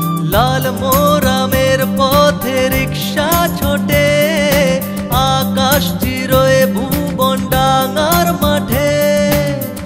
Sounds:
Singing

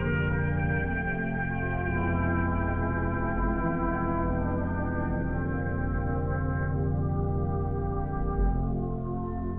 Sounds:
Music

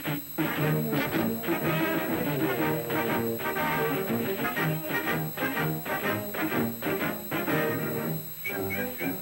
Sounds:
Music

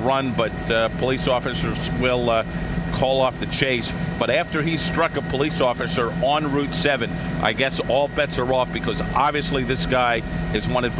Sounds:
Speech

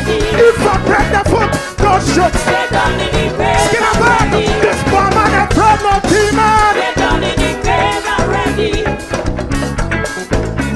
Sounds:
Singing, Music

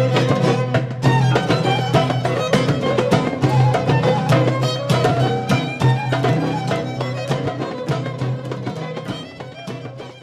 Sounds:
Folk music, Music

